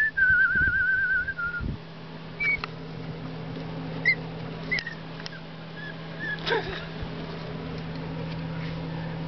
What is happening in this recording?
A person whistling and a dog whimpering